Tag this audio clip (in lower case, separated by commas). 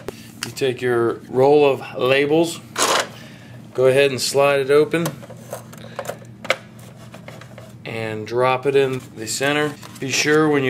speech, printer